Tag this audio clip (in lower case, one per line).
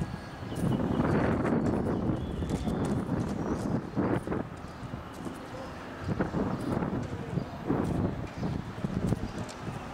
walk